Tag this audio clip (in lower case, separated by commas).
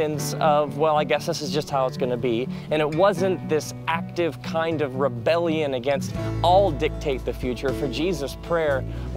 speech, music